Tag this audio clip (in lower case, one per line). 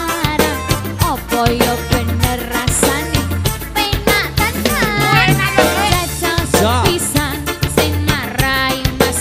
music